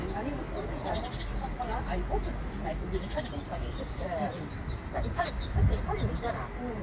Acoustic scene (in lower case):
park